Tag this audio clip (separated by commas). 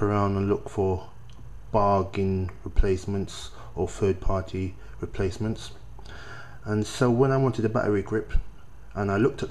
Speech